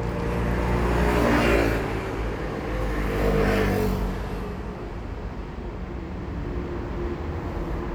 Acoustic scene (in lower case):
street